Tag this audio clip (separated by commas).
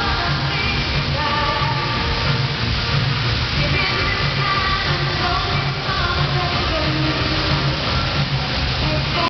Music